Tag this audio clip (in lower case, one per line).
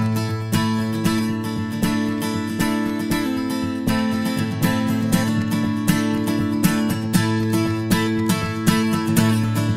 plucked string instrument
guitar
musical instrument
music
strum
acoustic guitar